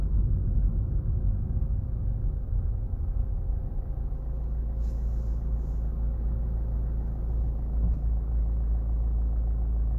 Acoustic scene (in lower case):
car